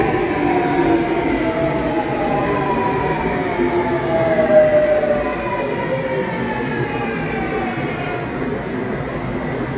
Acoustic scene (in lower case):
subway station